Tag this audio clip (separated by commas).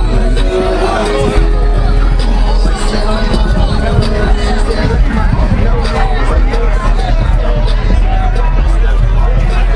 Music